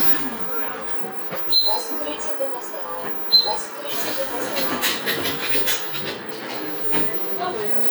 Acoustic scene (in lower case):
bus